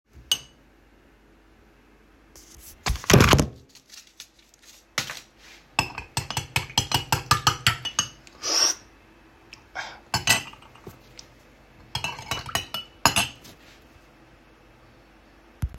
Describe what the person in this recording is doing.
I open my instant coffee and start to brewing and take a sip